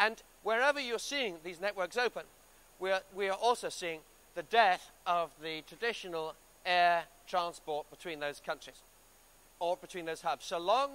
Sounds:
Speech

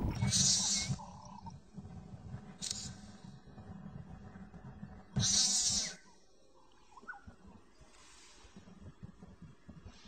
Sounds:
Wild animals, Animal

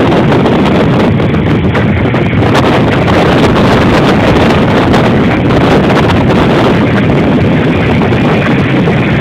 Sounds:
Vehicle, Motorboat

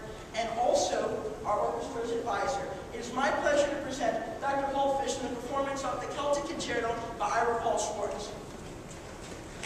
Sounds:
Speech

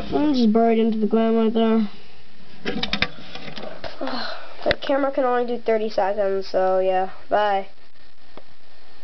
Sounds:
inside a small room, Speech

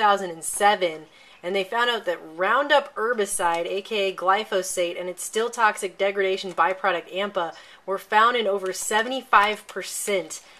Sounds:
Speech

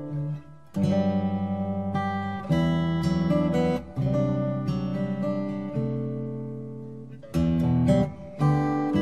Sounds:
Music, Acoustic guitar

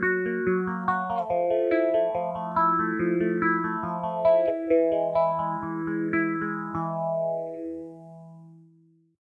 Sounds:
Music, Musical instrument, Plucked string instrument, Guitar, Bass guitar

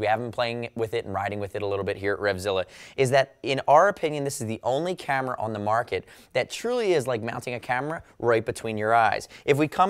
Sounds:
Speech

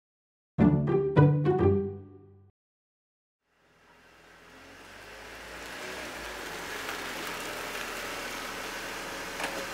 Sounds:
Music

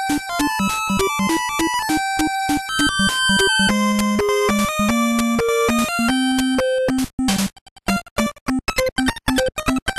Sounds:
Music

